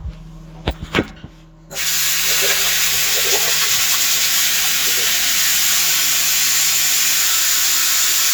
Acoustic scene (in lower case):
restroom